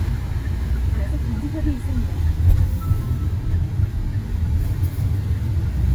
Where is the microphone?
in a car